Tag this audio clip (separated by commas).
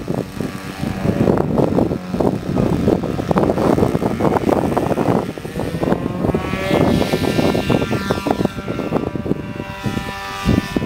Aircraft